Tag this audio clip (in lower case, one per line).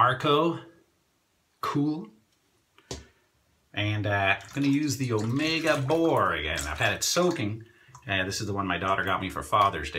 speech